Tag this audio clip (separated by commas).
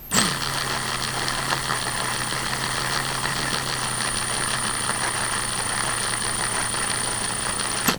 Tools